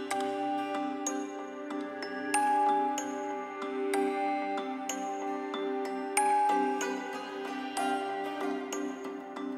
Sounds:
tender music, theme music, music

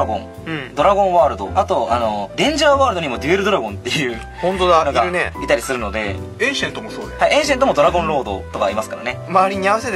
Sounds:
speech, music

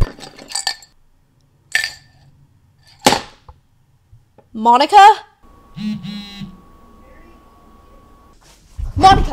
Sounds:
inside a small room, speech

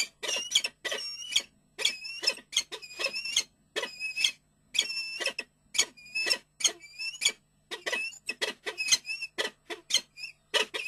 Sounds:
bird

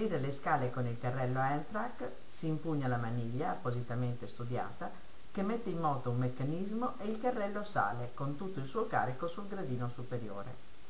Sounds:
speech

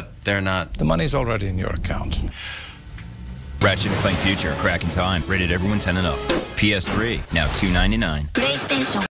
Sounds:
music, speech

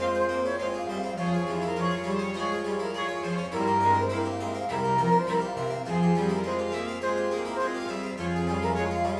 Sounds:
playing harpsichord

